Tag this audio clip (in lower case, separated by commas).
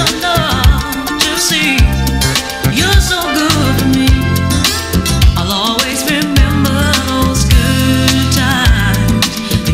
music